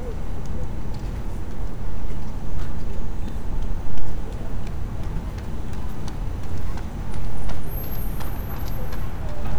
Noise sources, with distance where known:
person or small group talking, far

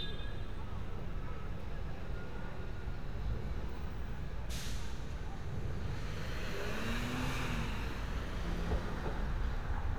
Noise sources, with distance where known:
medium-sounding engine, near
car horn

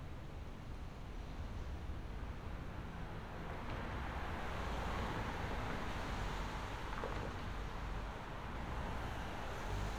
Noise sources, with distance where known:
engine of unclear size

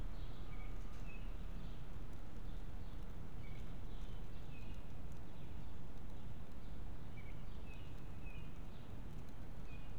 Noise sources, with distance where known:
background noise

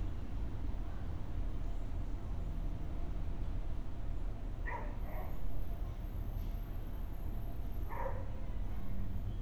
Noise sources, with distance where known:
large-sounding engine
dog barking or whining

